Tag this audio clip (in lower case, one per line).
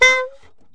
woodwind instrument
music
musical instrument